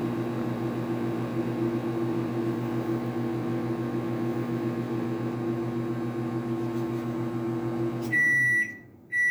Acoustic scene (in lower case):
kitchen